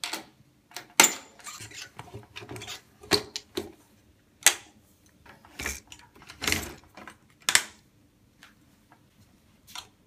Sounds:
bicycle, vehicle

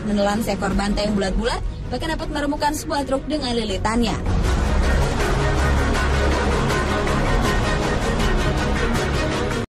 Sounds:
music, speech

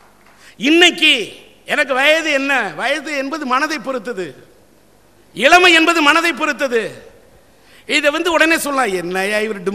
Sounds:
male speech, speech, narration

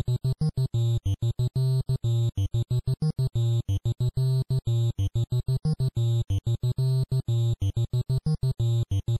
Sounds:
theme music

